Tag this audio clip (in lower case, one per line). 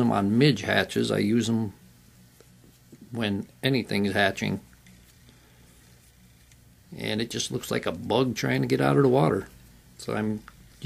speech